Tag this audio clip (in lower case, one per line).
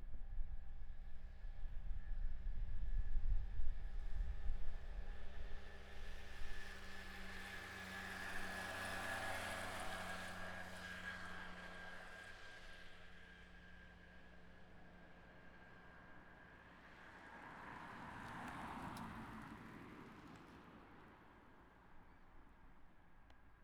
engine